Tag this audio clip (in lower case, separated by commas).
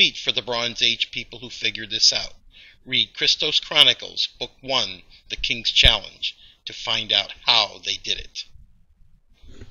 speech